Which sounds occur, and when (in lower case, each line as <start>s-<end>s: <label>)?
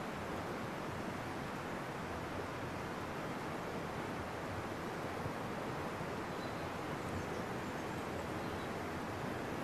0.0s-9.6s: background noise
0.0s-9.6s: wind
6.2s-6.6s: tweet
7.1s-7.4s: tweet
7.5s-7.9s: tweet
8.4s-8.8s: tweet